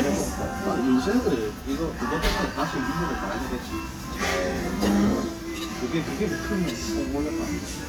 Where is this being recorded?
in a restaurant